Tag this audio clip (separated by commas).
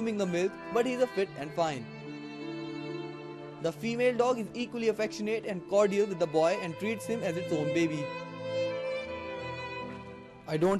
Speech, Music